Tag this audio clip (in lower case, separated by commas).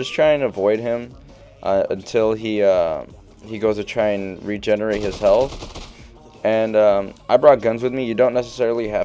speech, music